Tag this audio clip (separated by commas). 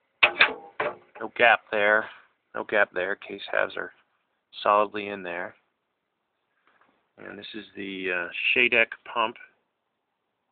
Speech